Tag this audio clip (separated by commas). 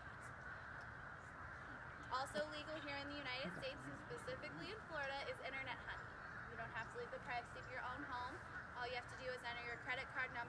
Speech